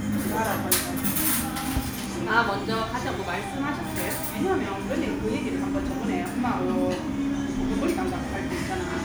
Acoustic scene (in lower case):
restaurant